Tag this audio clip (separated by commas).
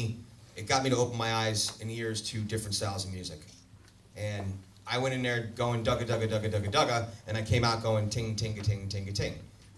Speech